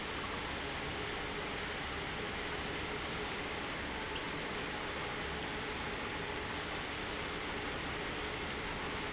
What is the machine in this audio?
pump